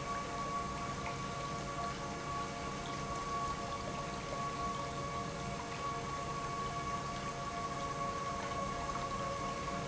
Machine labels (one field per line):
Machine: pump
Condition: normal